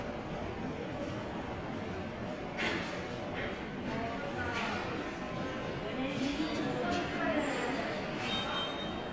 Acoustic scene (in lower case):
subway station